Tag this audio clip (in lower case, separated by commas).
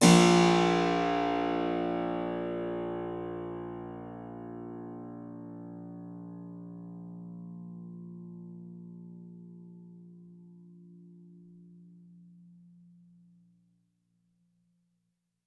musical instrument, music, keyboard (musical)